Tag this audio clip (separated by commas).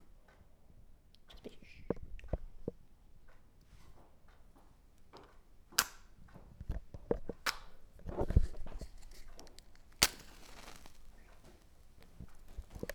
Fire